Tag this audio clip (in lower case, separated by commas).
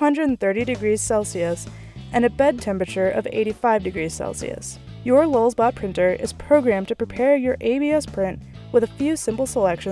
music, speech